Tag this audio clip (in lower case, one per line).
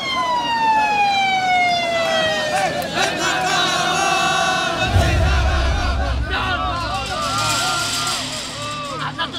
fire truck (siren)